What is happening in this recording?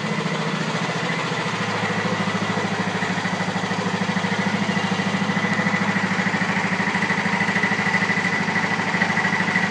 Loud engine putters along